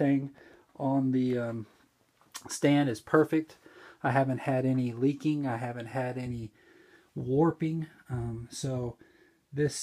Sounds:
Speech

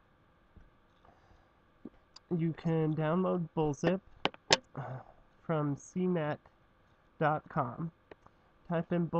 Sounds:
Speech

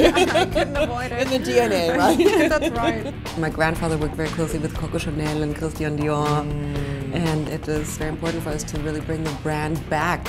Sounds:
Music, Speech

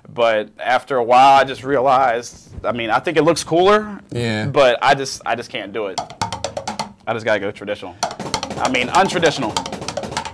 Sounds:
Drum, inside a small room, Music, Drum roll, Musical instrument, Speech

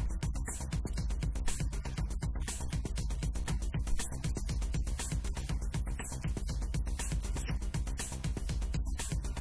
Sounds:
Music, Speech

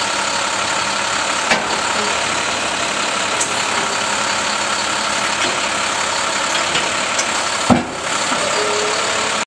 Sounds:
Vehicle, Truck

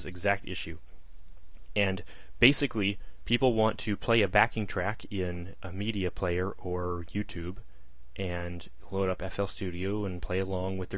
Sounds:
Speech

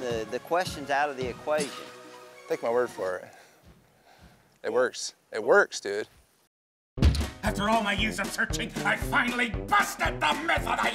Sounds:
Speech, Music

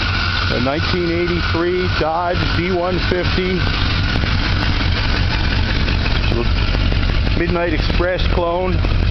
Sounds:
Speech, Vehicle

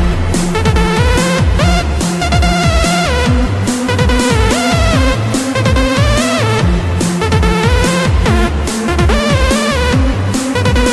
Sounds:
Music, Techno, Dubstep, Electronic music, Electronic dance music, Electronica

